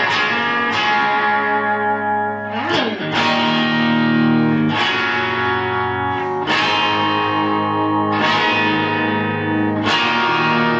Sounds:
Plucked string instrument, Music, Musical instrument, Guitar, Strum, Electric guitar

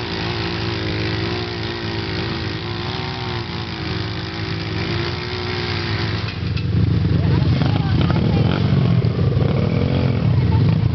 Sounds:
Speech

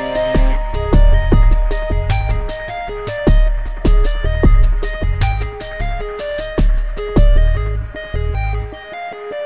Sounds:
Music

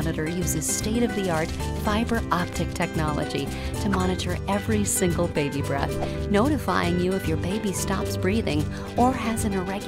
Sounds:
Music, Speech

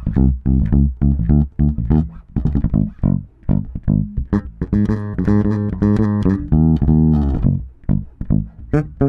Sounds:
Music

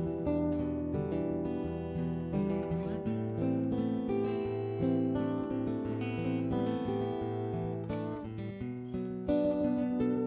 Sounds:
Music

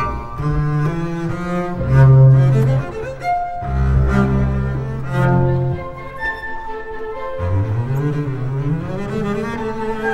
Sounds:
Double bass, Cello, Bowed string instrument

